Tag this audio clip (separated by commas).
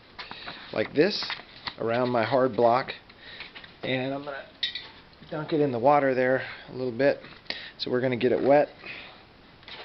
Speech, inside a small room